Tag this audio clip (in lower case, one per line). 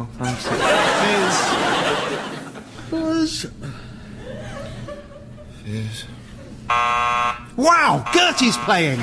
speech
alarm